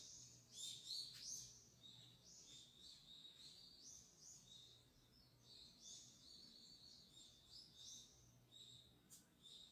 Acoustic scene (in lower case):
park